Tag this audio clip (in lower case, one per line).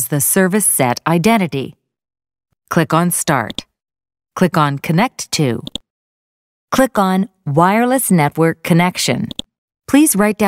speech